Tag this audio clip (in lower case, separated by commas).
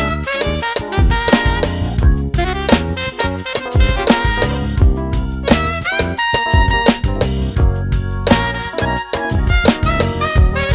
electric piano, keyboard (musical), piano